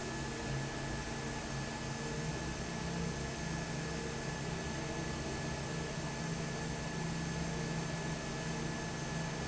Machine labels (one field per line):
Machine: fan